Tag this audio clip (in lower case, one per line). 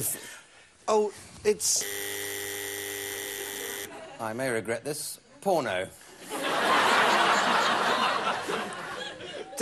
speech